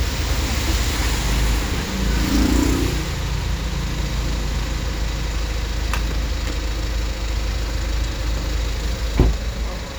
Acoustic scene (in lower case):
street